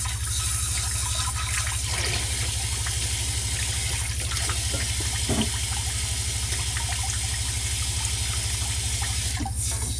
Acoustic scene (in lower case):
kitchen